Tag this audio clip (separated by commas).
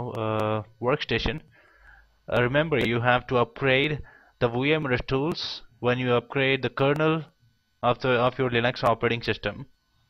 Speech